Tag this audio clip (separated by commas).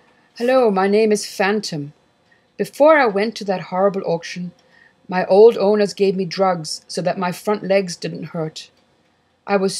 Speech